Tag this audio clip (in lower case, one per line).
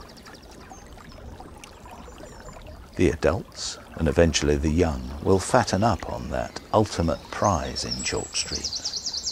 speech
animal